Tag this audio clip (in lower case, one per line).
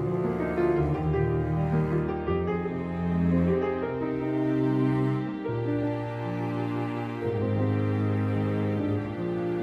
music
background music
wedding music
cello